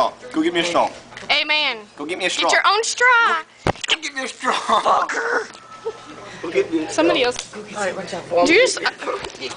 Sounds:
Speech

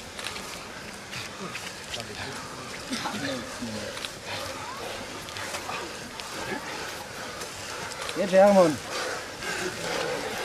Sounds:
outside, rural or natural, Speech, Run

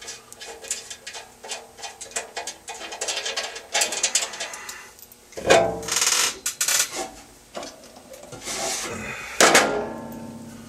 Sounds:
Tools

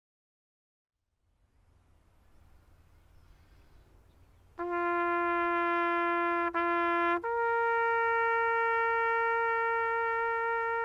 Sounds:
playing bugle

